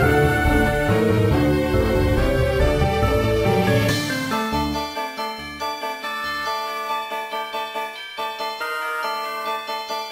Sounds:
Music

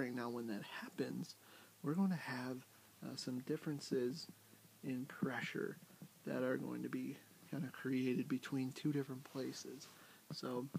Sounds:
Speech

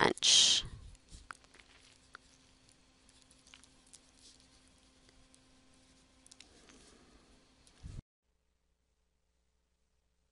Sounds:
Speech

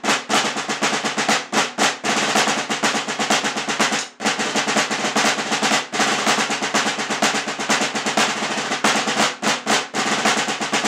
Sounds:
playing snare drum

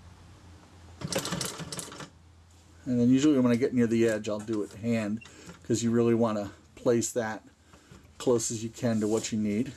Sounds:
Speech, Sewing machine

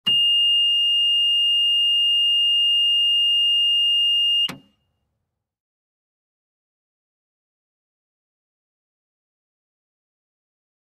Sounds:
reversing beeps

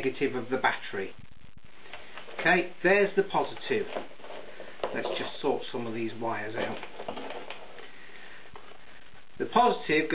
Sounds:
inside a small room, Speech

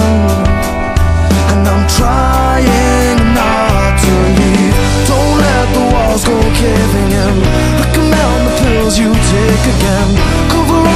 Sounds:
Music

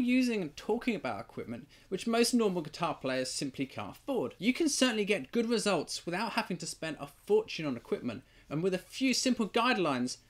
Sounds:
Speech

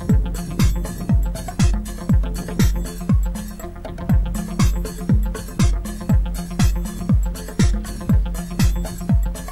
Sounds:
Music

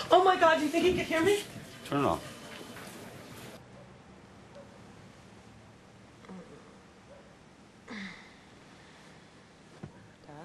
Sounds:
Speech, inside a small room

